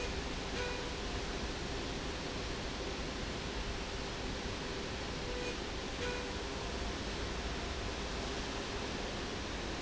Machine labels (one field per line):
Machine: slide rail